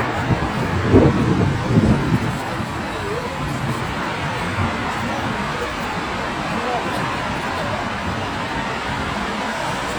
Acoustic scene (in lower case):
street